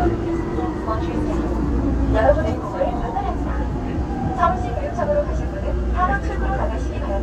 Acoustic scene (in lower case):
subway train